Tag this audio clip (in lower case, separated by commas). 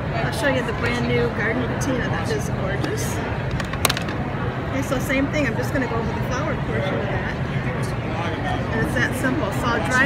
speech